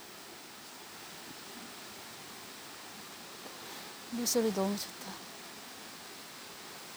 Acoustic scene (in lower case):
park